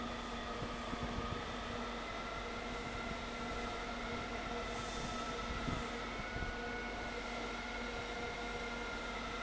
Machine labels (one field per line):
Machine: fan